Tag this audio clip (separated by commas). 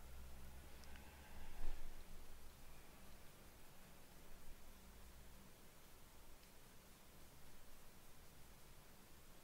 Silence, Speech